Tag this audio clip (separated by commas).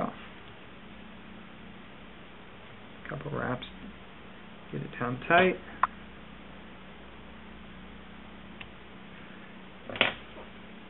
Speech